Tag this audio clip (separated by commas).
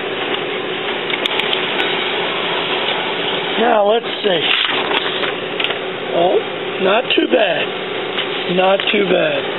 Printer, Speech